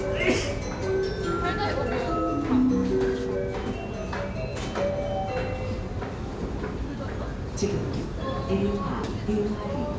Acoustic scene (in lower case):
subway station